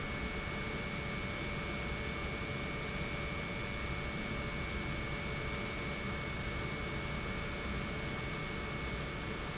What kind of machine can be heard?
pump